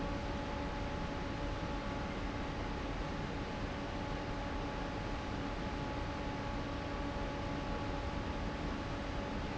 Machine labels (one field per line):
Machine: fan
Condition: normal